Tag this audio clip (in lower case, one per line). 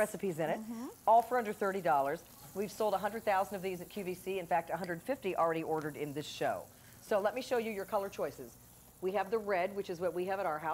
sizzle